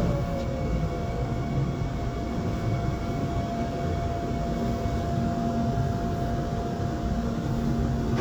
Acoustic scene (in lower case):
subway train